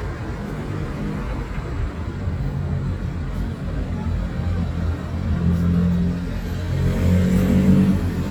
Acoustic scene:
street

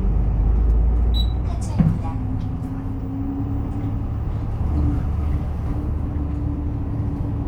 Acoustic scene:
bus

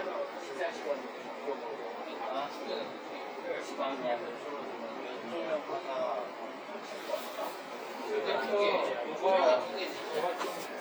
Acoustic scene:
crowded indoor space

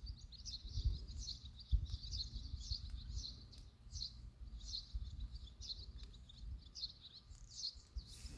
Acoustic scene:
park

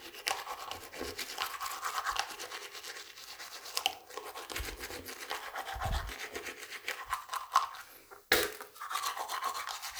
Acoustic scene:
restroom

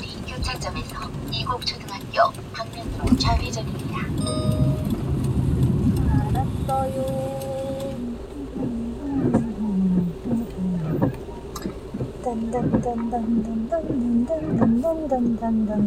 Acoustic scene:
car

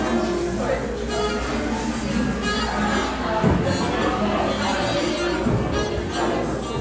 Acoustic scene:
cafe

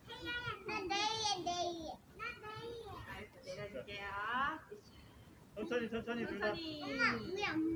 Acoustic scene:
residential area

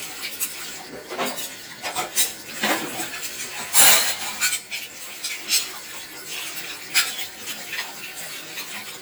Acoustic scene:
kitchen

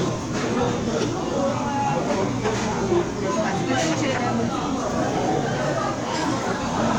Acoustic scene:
restaurant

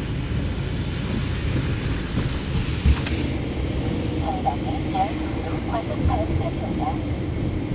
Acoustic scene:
car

